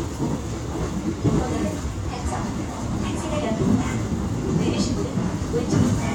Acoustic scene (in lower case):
subway train